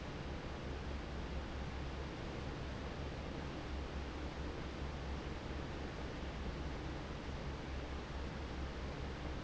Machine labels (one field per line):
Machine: fan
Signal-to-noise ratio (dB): 0 dB